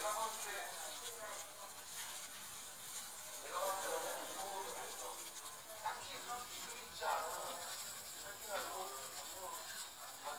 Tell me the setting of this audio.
restaurant